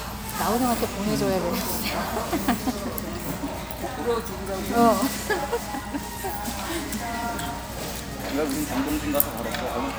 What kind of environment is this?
restaurant